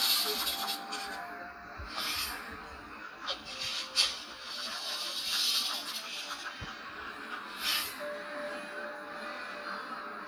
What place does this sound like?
cafe